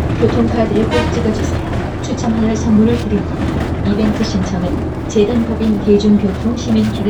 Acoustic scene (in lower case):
bus